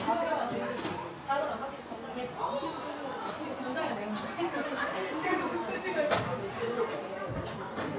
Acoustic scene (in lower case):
park